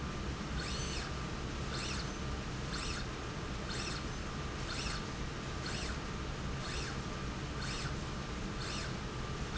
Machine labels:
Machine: slide rail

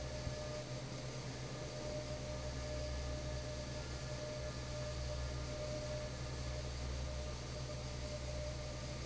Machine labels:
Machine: fan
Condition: normal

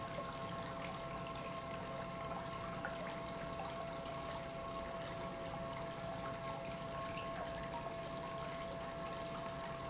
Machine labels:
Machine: pump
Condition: normal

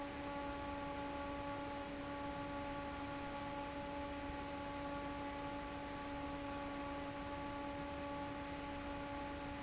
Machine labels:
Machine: fan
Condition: normal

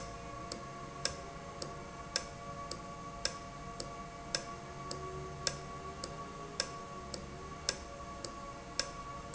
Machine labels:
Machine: valve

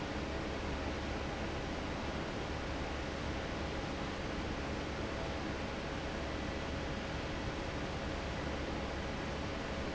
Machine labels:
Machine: fan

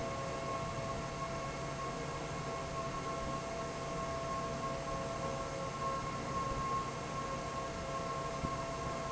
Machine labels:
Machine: fan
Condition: normal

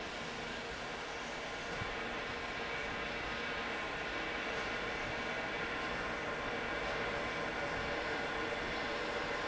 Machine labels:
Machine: fan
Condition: normal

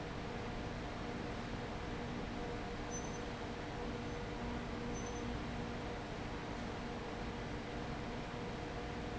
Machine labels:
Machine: fan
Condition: abnormal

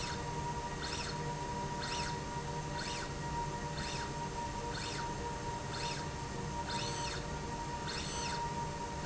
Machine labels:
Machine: slide rail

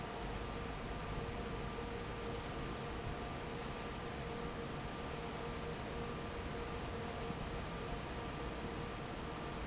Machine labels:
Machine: fan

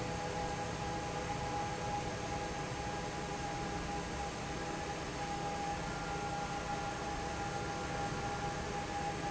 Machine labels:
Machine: fan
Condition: normal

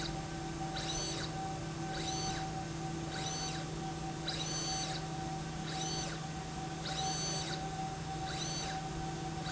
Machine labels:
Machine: slide rail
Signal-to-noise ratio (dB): -6 dB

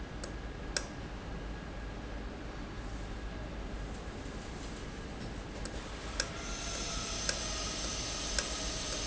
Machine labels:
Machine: valve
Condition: normal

